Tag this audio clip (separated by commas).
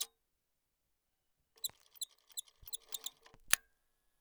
Mechanisms